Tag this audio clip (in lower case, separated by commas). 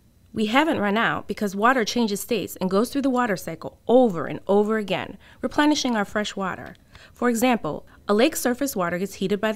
speech